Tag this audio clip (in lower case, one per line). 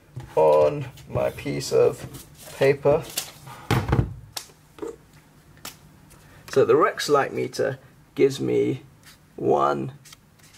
inside a small room
speech